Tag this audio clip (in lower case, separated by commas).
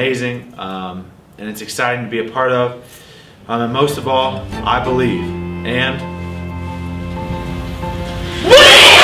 music, inside a small room, speech